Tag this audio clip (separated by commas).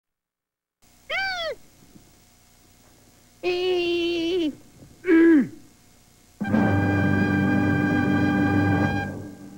Music, Speech